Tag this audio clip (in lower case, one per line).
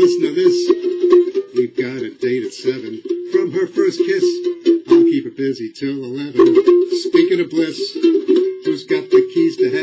ukulele
musical instrument
inside a small room
music